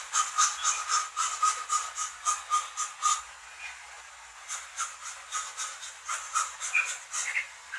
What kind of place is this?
restroom